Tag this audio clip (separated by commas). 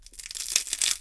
Crushing